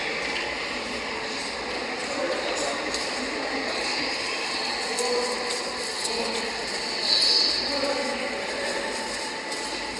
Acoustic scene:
subway station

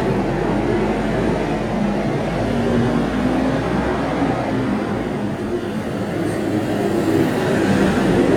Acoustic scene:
street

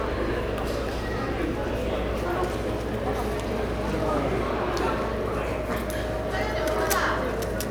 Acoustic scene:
subway station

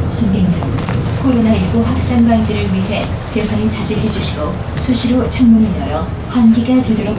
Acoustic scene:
bus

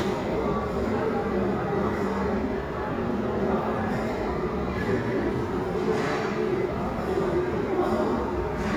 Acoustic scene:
restaurant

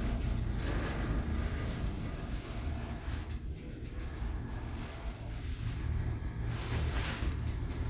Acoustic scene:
elevator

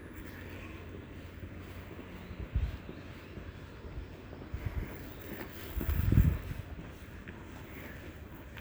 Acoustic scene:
residential area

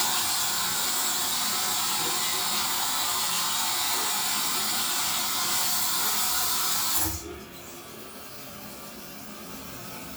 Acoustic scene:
restroom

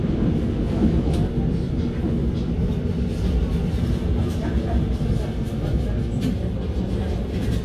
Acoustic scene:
subway train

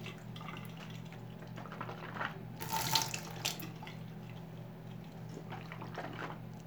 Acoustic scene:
restroom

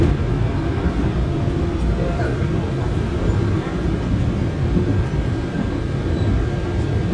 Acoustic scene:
subway train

